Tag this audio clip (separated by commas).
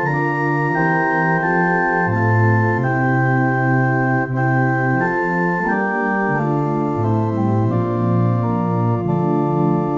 Piano, Music, playing piano, Keyboard (musical), Musical instrument